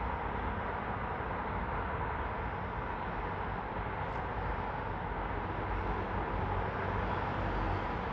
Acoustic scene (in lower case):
street